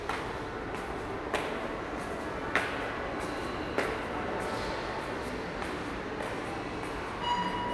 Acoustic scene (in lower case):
subway station